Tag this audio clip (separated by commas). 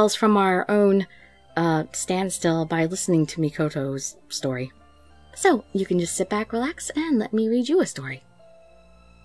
Music, Speech, monologue